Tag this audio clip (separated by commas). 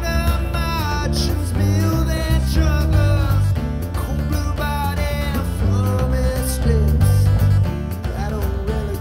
Psychedelic rock, Music